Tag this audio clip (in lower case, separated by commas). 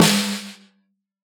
music, musical instrument, snare drum, percussion, drum